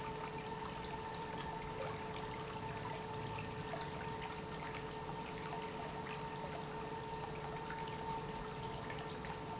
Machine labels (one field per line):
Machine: pump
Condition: normal